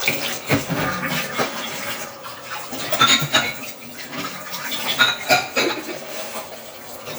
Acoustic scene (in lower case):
kitchen